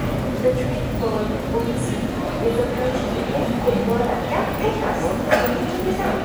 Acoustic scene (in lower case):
subway station